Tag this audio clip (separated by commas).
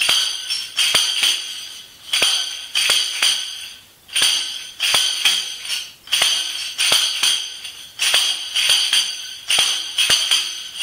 playing tambourine